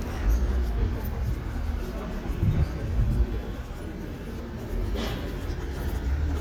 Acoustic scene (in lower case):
residential area